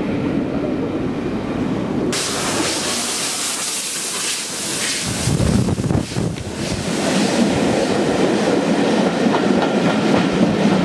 Steam escaping a large engine as it passes by